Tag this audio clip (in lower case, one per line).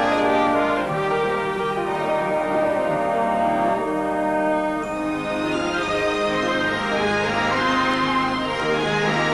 music